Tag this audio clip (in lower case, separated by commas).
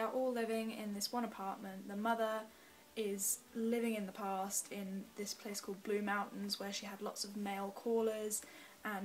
speech